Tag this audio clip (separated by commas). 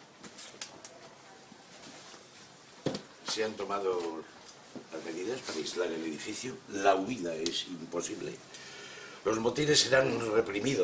Speech